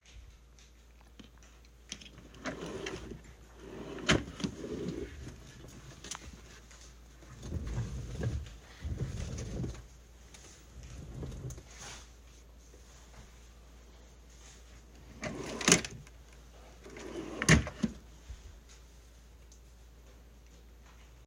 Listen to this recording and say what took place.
While I was opening and closing the drawer, my friend was collecting papers and my chair was moved forth and back.